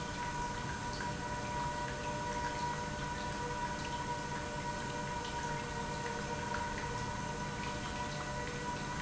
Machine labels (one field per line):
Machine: pump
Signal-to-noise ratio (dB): -6 dB